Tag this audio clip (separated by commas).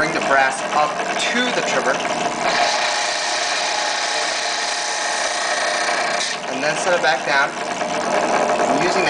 Speech, Tools, Drill